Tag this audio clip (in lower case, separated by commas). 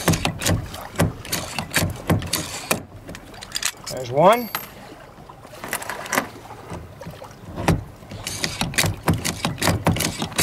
rowboat, speech